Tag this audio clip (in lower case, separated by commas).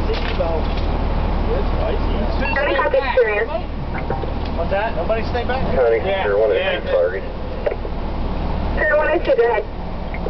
car, speech, vehicle